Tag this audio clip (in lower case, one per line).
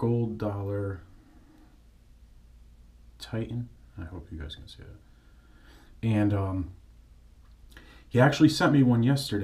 speech